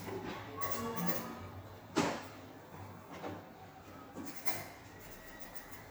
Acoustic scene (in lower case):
elevator